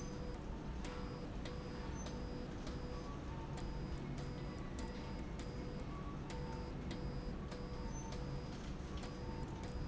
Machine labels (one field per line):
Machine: slide rail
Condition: abnormal